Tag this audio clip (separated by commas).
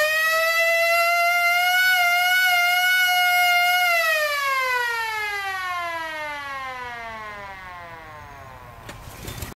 Siren, Civil defense siren